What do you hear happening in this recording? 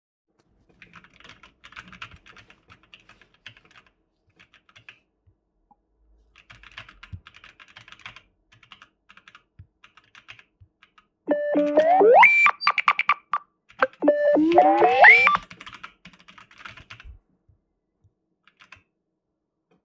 I was chatting on PC and then received a phone call